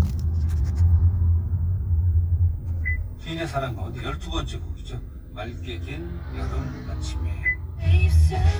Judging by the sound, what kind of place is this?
car